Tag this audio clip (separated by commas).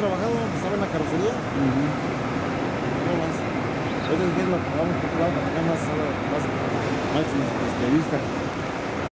Vehicle, Speech